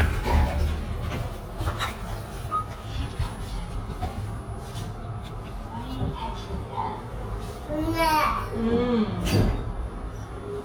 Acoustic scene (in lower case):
elevator